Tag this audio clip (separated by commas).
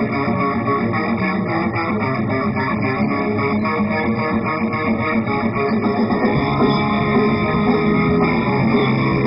Music, Electric guitar, Musical instrument